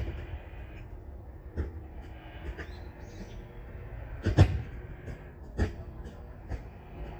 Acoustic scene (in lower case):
park